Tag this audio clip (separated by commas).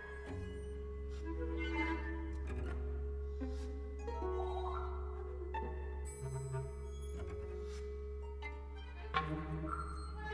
Orchestra, Violin, Music, Double bass, Musical instrument, Classical music, Bowed string instrument, Cello